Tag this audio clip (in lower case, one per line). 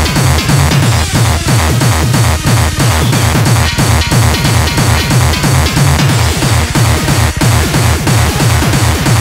techno
music
electronic music